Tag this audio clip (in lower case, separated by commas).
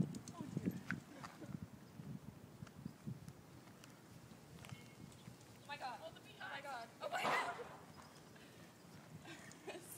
bicycle, vehicle, speech